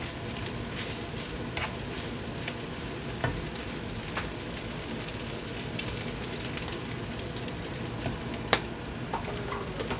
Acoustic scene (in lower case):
kitchen